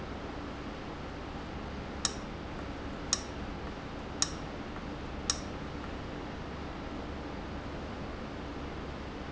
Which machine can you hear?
valve